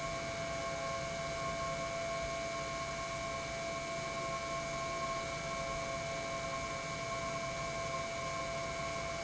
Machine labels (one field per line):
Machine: pump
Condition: normal